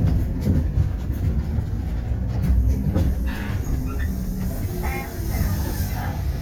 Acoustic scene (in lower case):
bus